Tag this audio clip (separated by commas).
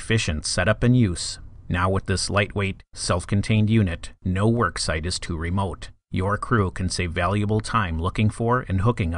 Speech